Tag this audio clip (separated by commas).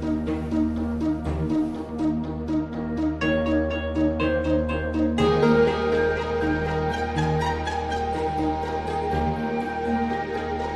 Music